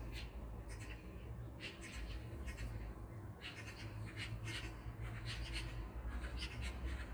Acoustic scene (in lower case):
park